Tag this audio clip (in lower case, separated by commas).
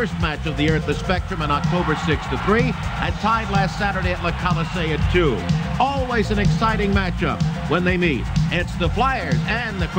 speech